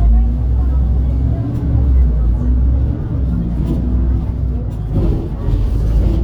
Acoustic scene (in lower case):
bus